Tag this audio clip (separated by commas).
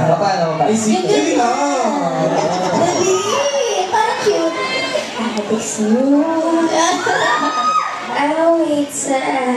Speech, inside a large room or hall